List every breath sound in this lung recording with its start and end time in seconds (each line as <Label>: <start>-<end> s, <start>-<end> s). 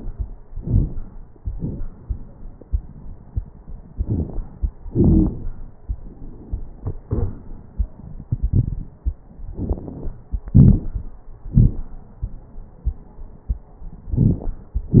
Inhalation: 0.50-0.98 s, 3.98-4.46 s, 9.59-10.22 s
Exhalation: 1.37-1.85 s, 4.87-5.51 s, 10.57-11.13 s
Wheeze: 4.91-5.31 s
Crackles: 0.50-0.98 s, 1.37-1.85 s, 3.98-4.46 s, 9.59-10.22 s, 10.57-11.13 s